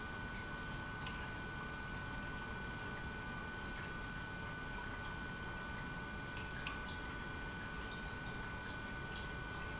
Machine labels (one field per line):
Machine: pump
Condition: normal